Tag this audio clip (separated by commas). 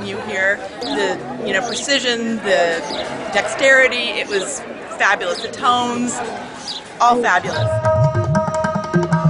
Speech, Music